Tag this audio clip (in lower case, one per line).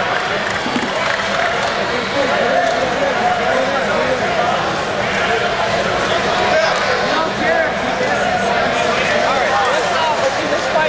speech